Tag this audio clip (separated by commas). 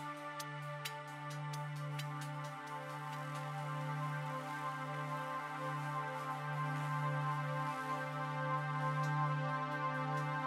Music